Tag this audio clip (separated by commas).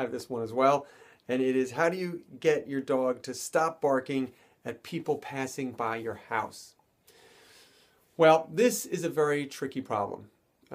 Speech